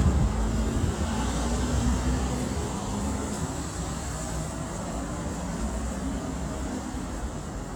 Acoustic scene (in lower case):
street